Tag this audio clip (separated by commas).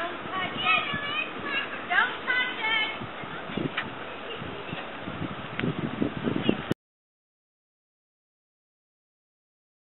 Speech